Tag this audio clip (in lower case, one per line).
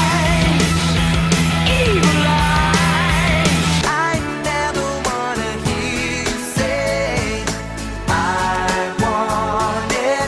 music